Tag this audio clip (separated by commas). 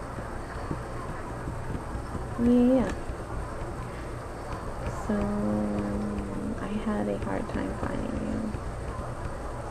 Speech